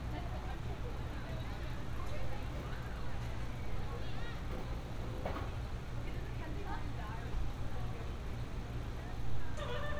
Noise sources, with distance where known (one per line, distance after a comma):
person or small group talking